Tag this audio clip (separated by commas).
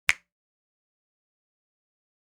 Hands, Finger snapping